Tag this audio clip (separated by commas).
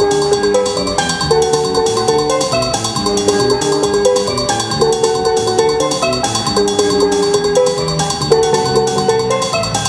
Music